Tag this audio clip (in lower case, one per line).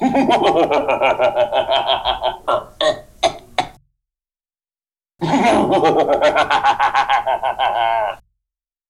laughter
human voice